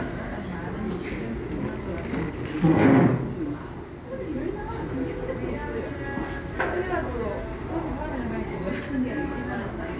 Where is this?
in a cafe